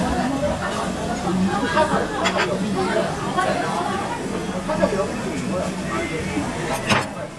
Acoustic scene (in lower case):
restaurant